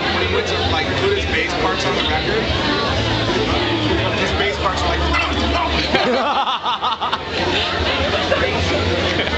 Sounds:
speech, music

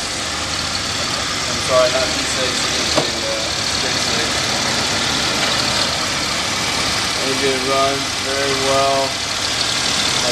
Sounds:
vehicle, idling, speech, car

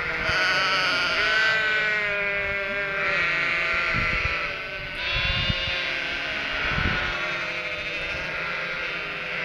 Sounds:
sheep, bleat

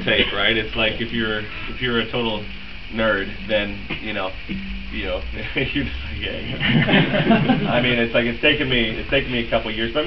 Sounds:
speech

